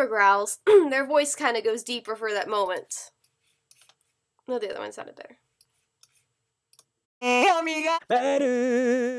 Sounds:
clicking, speech

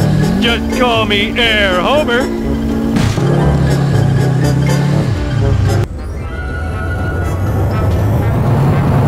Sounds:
speech, music

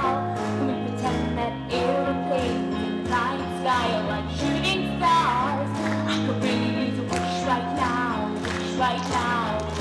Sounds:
inside a large room or hall, music

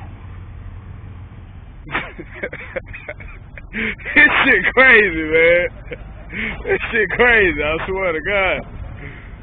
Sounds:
speech, vehicle

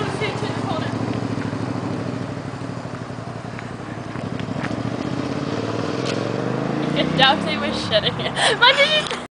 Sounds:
speech

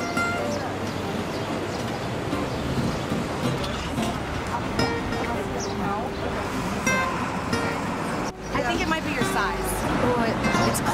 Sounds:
music, speech

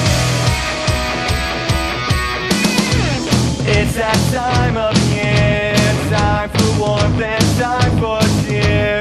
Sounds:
music, progressive rock

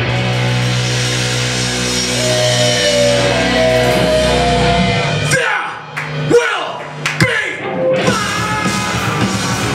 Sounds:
music, singing, heavy metal

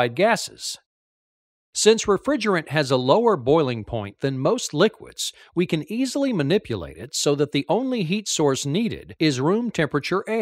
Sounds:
speech

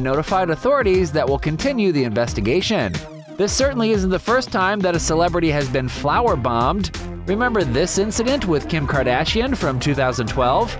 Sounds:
music, speech

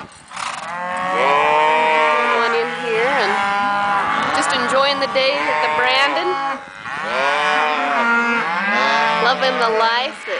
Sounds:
speech

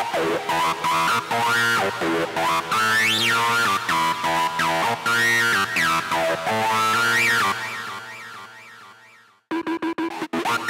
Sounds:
dubstep, music, electronic music

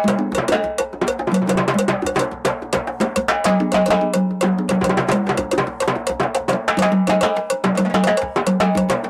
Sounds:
musical instrument, drum, music

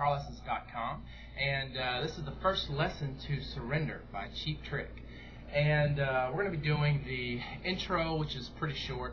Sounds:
speech

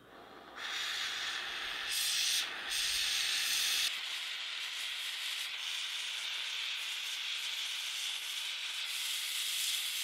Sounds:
blowtorch igniting

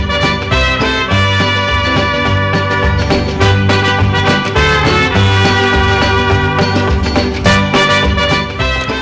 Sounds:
music, speech

